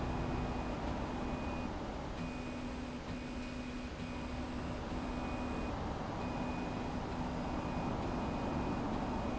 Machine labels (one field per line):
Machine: slide rail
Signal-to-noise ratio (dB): -6 dB